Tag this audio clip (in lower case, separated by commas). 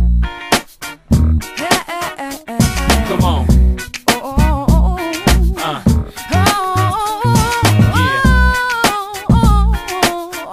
music, pop music